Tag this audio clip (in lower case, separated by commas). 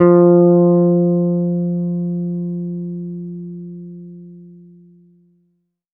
bass guitar, musical instrument, music, plucked string instrument, guitar